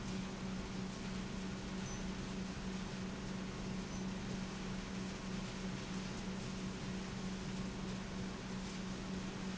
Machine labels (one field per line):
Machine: pump